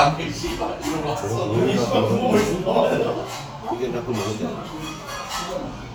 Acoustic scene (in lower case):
restaurant